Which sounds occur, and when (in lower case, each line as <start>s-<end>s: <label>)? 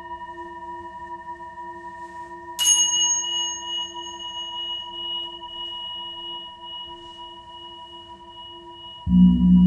0.0s-9.6s: background noise
0.0s-9.6s: music
1.9s-2.5s: surface contact